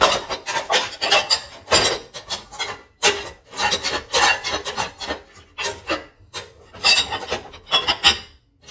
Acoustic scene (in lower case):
kitchen